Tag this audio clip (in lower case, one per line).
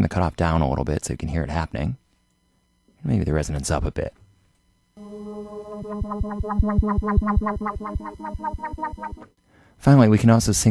sampler
music
speech